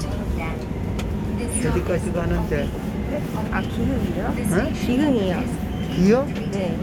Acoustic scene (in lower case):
subway train